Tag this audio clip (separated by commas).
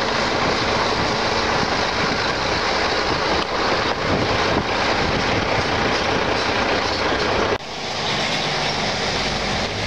Vehicle, Truck